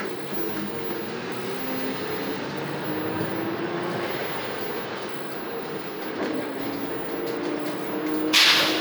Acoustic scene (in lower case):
bus